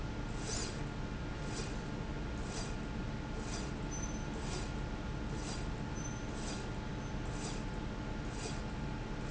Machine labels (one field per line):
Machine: slide rail